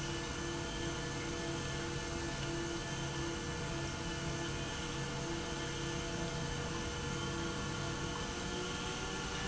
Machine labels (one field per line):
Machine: pump